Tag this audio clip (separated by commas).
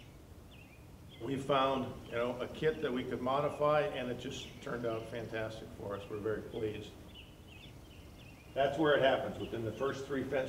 Speech